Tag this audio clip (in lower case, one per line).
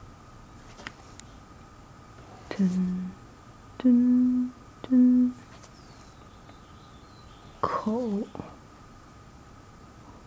speech